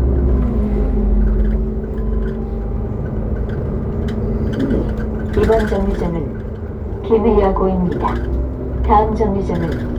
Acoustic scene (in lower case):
bus